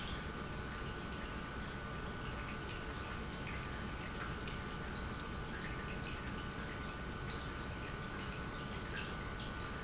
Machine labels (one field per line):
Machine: pump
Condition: normal